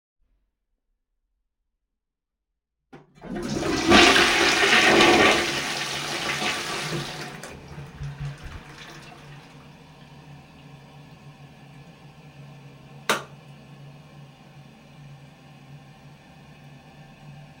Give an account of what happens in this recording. I flushed the toilet and turned off the light afterwards